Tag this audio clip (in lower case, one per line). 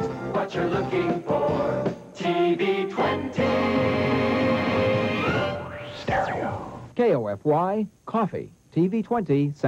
speech
music